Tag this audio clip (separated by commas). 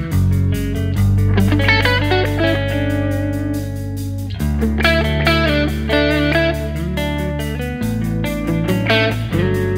Music